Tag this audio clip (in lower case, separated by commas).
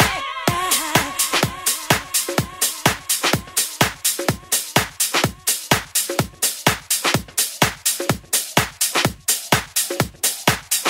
music